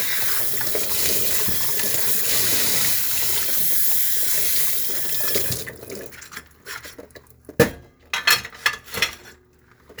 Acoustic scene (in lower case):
kitchen